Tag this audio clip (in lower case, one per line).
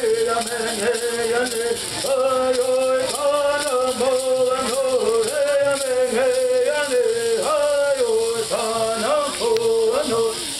male singing
music